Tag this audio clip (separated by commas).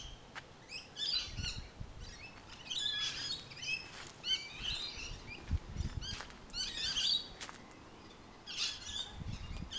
Bird, Bird vocalization, tweet